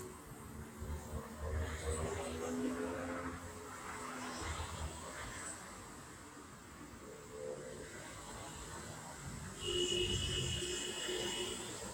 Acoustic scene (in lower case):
street